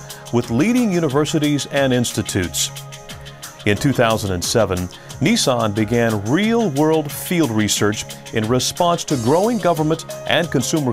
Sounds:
music, speech

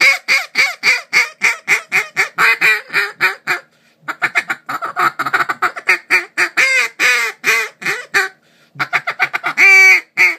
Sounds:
quack

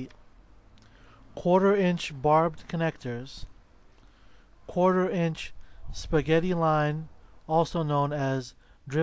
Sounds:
speech

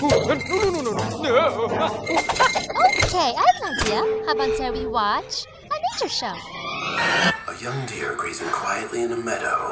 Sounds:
speech

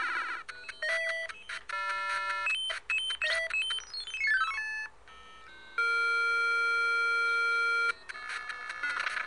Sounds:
sound effect

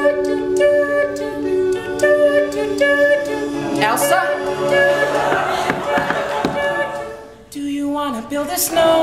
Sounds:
music, speech

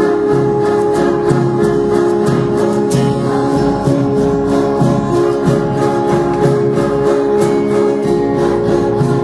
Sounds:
singing, gospel music, choir, music, musical instrument

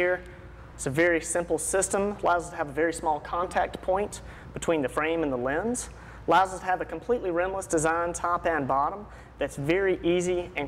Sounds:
speech

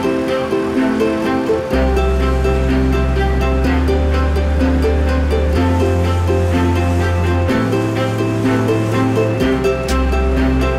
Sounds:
music

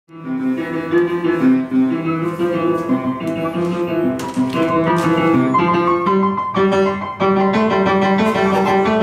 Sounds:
inside a small room, music

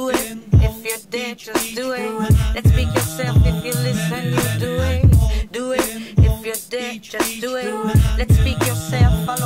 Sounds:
speech, music

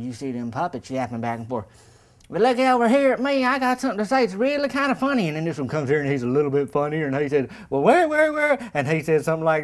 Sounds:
speech

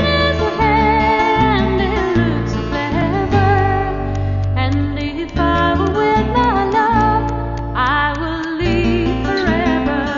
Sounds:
music

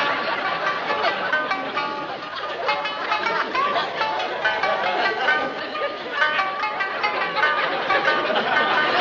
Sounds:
speech, music

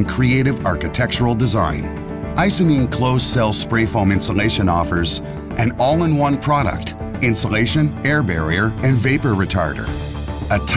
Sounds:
music, speech

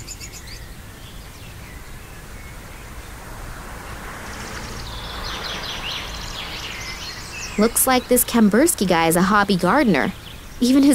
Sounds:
speech, outside, rural or natural

